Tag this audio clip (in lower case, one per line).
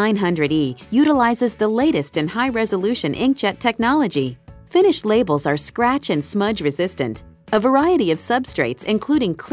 speech
music